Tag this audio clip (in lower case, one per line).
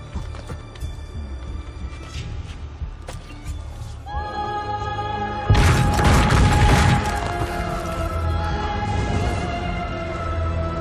music